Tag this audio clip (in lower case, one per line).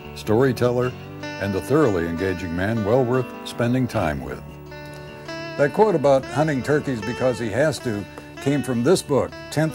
speech
music